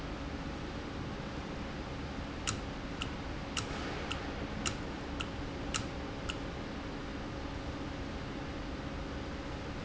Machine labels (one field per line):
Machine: valve